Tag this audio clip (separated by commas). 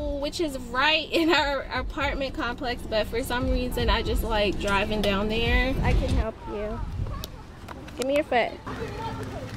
Speech